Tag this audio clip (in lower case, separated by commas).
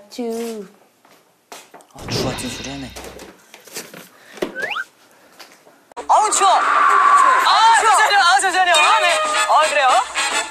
music, speech